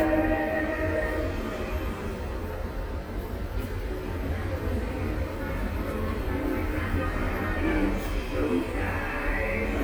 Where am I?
in a subway station